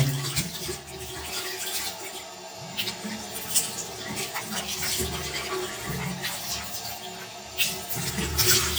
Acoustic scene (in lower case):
restroom